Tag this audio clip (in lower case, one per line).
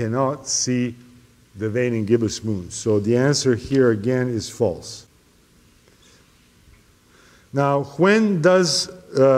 speech